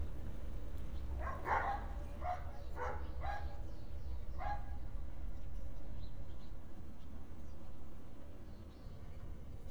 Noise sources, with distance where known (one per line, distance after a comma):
dog barking or whining, near